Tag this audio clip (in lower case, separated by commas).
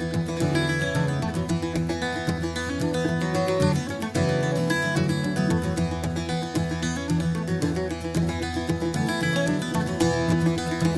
playing mandolin